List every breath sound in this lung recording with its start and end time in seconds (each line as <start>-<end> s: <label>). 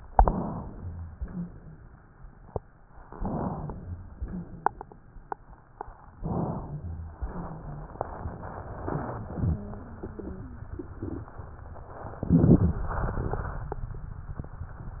0.06-1.12 s: inhalation
0.68-1.12 s: rhonchi
1.10-1.54 s: wheeze
1.10-1.94 s: exhalation
3.07-4.14 s: inhalation
3.72-4.16 s: rhonchi
4.14-4.97 s: exhalation
4.23-4.67 s: wheeze
6.15-7.16 s: inhalation
6.66-7.17 s: rhonchi
7.19-8.03 s: exhalation
7.30-7.89 s: wheeze